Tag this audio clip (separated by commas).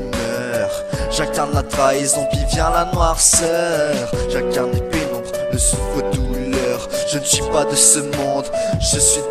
Music